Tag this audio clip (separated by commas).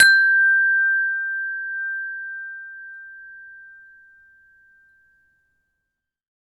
Bell, Wind chime, Chime